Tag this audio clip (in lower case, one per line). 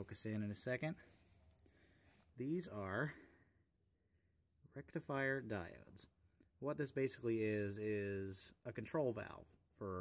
speech